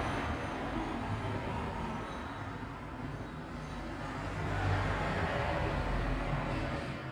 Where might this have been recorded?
on a street